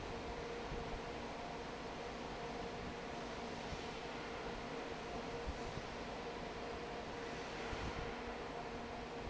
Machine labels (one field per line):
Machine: fan